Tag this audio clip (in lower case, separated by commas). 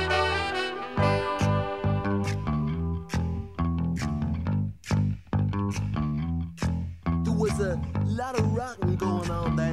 music